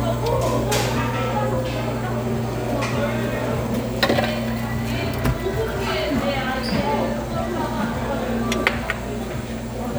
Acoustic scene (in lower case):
restaurant